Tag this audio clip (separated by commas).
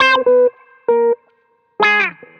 Plucked string instrument, Guitar, Musical instrument, Music